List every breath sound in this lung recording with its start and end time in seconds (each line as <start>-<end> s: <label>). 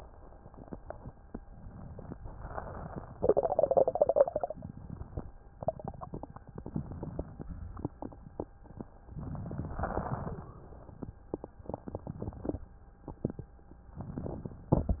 1.36-2.08 s: inhalation
2.21-3.15 s: exhalation
2.21-3.15 s: crackles
6.53-7.46 s: inhalation
7.46-8.39 s: exhalation
9.05-9.85 s: inhalation
9.86-11.09 s: exhalation
9.86-11.09 s: wheeze
13.98-14.71 s: inhalation